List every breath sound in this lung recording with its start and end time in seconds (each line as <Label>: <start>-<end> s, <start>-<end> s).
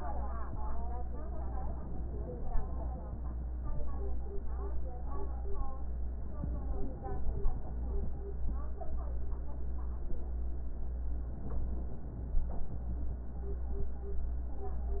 Inhalation: 6.17-8.35 s, 11.11-13.29 s